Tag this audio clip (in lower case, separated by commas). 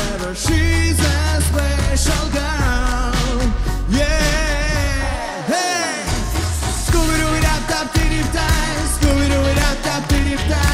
singing, song, pop music